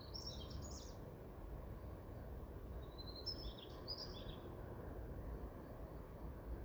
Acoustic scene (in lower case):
park